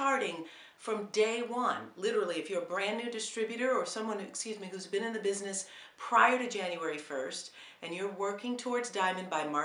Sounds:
Speech

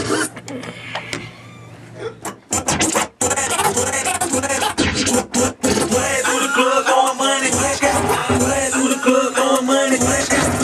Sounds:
Scratching (performance technique), Music

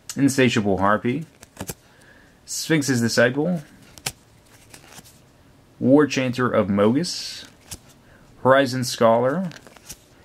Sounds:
Speech

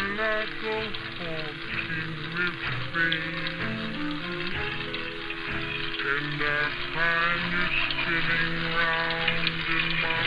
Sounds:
Music, Musical instrument

